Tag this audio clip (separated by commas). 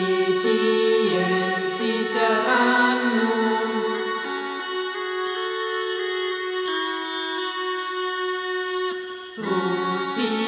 Carnatic music, Music